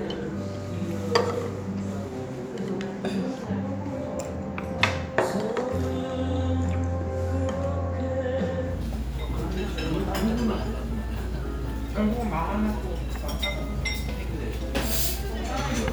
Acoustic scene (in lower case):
restaurant